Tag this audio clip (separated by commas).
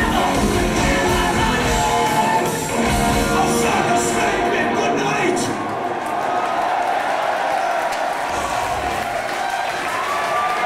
Music, inside a large room or hall, Singing